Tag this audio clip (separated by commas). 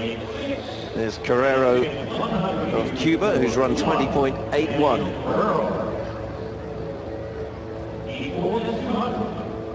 Speech